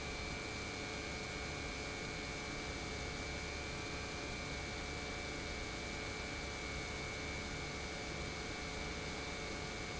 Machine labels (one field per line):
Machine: pump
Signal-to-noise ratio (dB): 0 dB